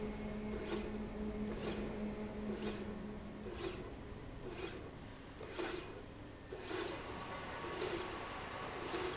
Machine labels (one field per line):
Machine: slide rail